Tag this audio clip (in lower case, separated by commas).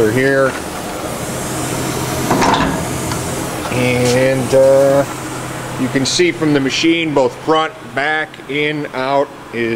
speech